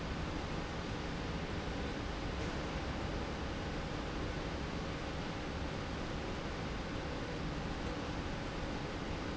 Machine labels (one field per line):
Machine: slide rail